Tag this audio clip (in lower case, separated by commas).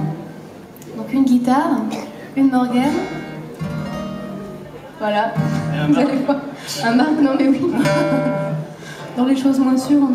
music, speech